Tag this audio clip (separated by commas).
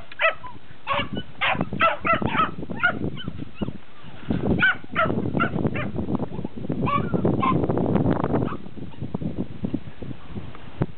Animal, livestock, Dog, pets